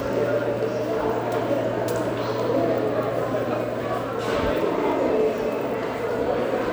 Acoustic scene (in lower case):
subway station